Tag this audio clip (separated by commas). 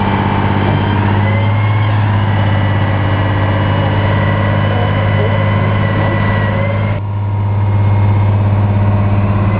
Motor vehicle (road), Vehicle, Speech, Truck